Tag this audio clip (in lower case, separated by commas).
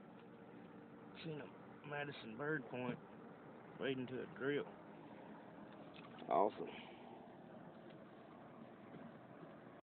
speech